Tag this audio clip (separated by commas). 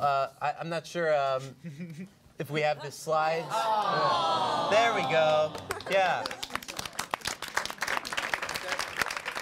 Speech